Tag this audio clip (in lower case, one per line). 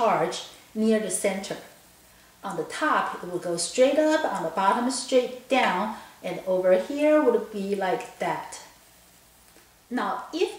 speech